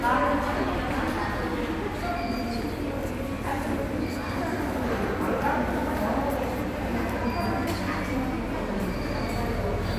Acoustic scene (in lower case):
subway station